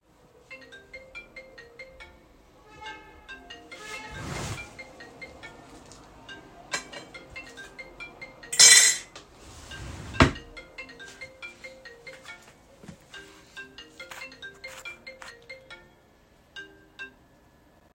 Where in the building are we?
kitchen